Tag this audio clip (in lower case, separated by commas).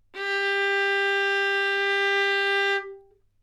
musical instrument, music, bowed string instrument